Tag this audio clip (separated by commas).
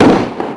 Explosion